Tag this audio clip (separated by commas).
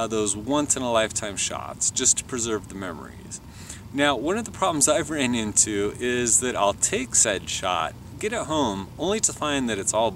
Speech